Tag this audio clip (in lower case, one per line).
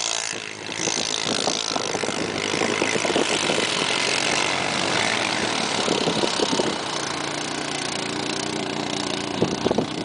vehicle